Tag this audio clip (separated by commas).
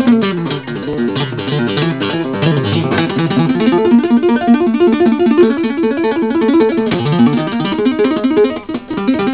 Music, Tapping (guitar technique)